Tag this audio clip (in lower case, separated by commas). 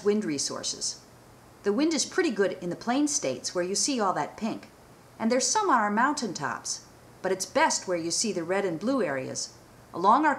speech